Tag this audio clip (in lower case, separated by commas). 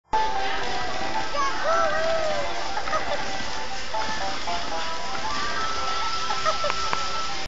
music